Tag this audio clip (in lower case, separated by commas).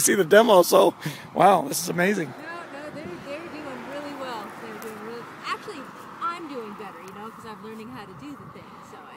speech